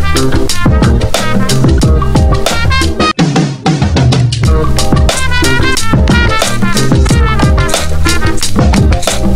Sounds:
Funk, Music, Background music

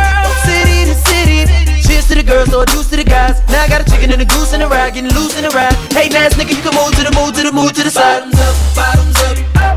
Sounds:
Music

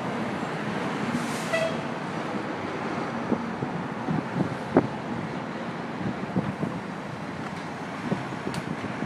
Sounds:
Vehicle

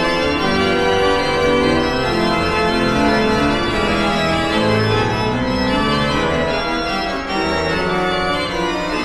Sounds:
Music, Keyboard (musical), Musical instrument

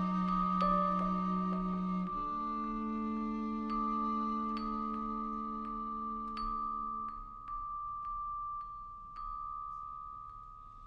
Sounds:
fiddle, Cello, Music, Bowed string instrument, Percussion, Musical instrument

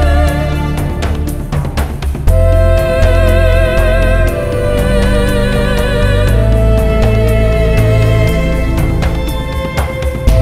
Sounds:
Music

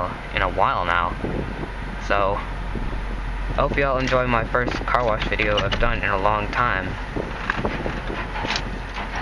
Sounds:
Speech, Vehicle

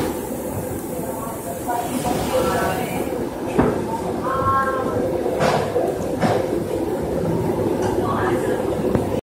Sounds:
Speech

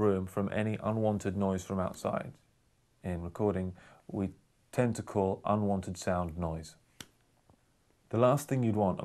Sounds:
Speech

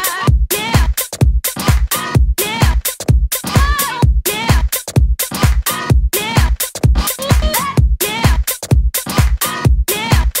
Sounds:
Music

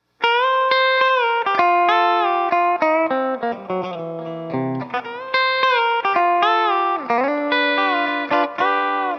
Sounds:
Distortion, Electric guitar, Musical instrument, Blues, Music, Plucked string instrument, Guitar, Country

